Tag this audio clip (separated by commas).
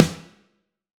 Music, Musical instrument, Drum, Snare drum, Percussion